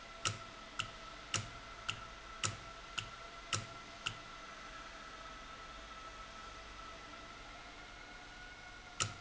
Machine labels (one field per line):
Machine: valve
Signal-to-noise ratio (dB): 6 dB